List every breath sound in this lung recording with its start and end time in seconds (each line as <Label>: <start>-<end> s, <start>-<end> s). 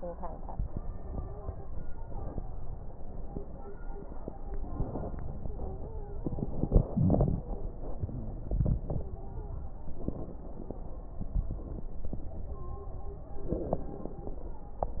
Inhalation: 4.40-5.27 s
Stridor: 0.81-1.67 s, 5.40-6.25 s, 8.97-9.65 s
Crackles: 6.29-7.50 s, 13.43-14.70 s